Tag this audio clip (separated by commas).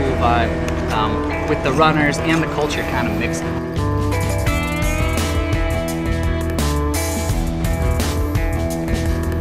Speech, Music